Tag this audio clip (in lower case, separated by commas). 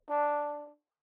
brass instrument, musical instrument, music